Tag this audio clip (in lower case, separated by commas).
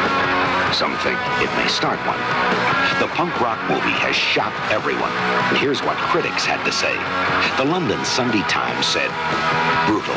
music, speech